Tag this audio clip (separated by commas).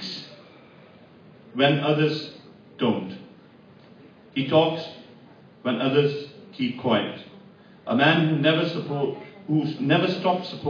Narration, Speech, Male speech